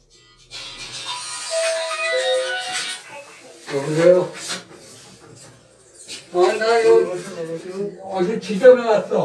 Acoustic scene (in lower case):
elevator